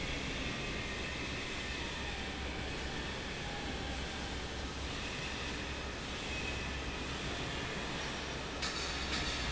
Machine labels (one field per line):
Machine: fan